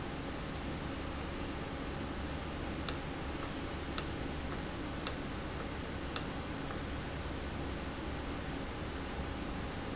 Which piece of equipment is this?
valve